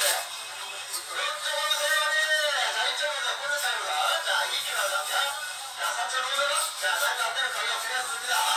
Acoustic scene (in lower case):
crowded indoor space